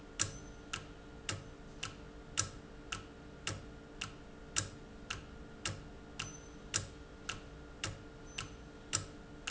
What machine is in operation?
valve